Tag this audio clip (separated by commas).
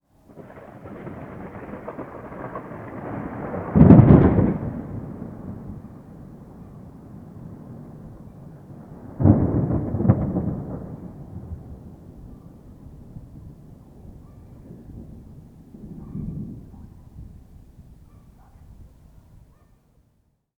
Thunder, Thunderstorm